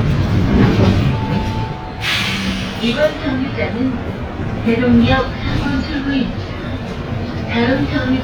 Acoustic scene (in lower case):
bus